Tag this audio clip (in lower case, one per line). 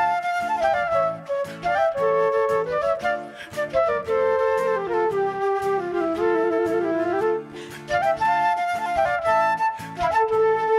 playing flute